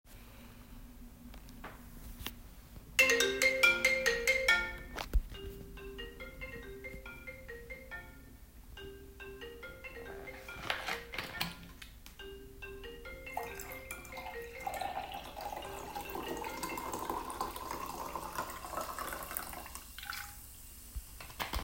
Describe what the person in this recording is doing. A phone rings while I pour some water into a glass